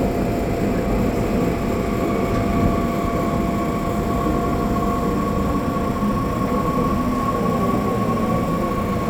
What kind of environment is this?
subway train